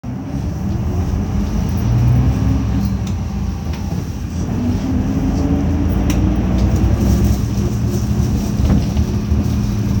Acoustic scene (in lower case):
bus